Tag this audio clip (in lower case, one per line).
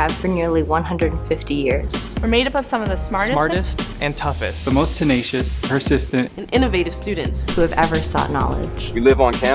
music
speech